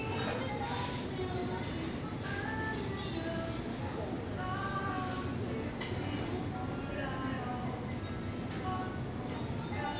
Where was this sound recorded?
in a crowded indoor space